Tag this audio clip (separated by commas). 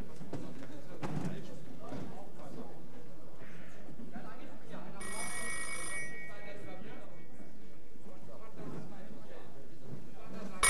Speech